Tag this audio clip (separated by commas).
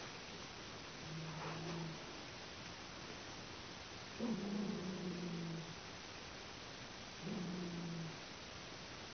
Yip, Animal, Dog, pets